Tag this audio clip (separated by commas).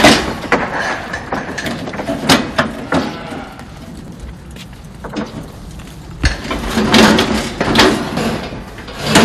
Animal, Goat, Sheep